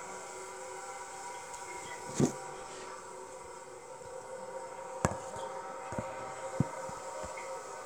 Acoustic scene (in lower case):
restroom